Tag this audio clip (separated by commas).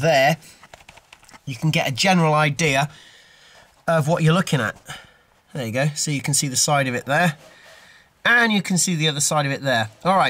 Speech